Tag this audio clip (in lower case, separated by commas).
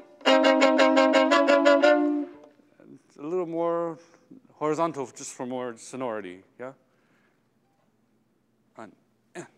fiddle, musical instrument, music, speech